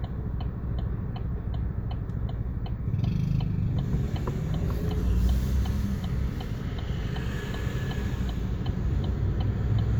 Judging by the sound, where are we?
in a car